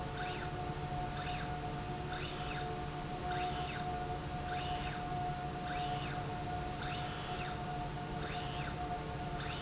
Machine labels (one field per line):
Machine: slide rail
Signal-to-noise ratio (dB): -6 dB